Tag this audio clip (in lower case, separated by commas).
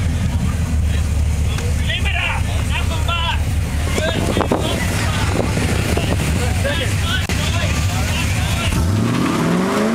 vehicle, car, motor vehicle (road), speech